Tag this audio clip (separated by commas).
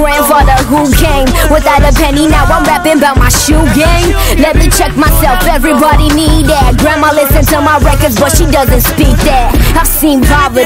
Music